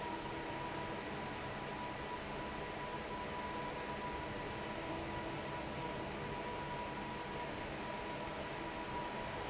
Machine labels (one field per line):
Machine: fan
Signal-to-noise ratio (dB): 0 dB